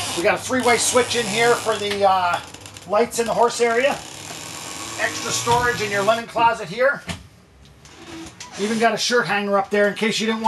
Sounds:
inside a small room, Speech

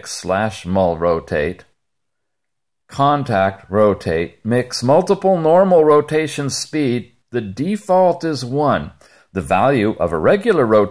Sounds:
Speech

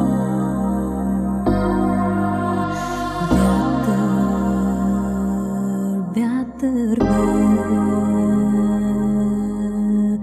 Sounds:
Music

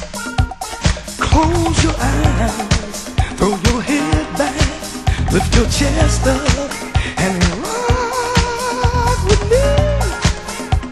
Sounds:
Pop music, Music, Disco

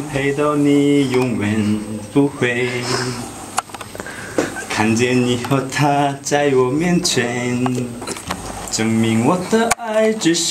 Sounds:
Male singing

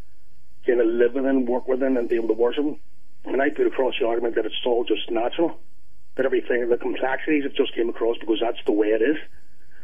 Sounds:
Speech, Radio

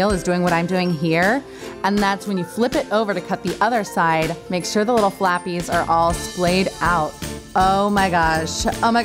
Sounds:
Speech, Music

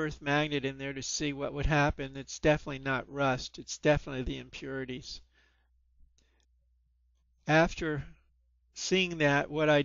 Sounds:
Speech

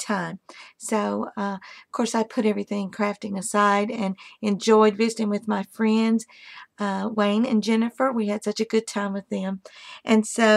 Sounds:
Speech

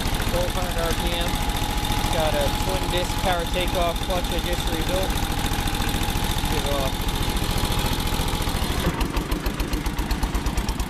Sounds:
Speech

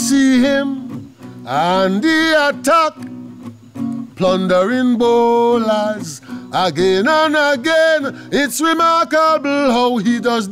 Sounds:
Male singing, Music

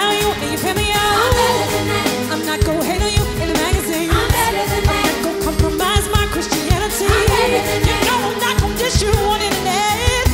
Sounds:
child singing

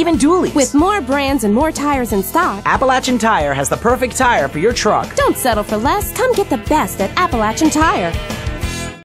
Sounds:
Music, Speech

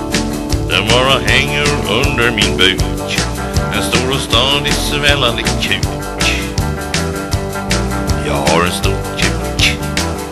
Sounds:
Happy music, Music

